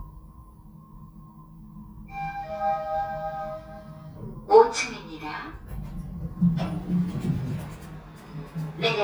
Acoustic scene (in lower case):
elevator